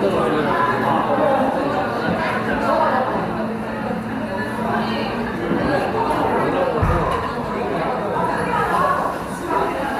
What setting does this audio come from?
cafe